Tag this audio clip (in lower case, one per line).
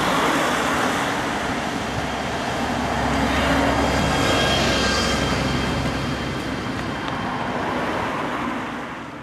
vehicle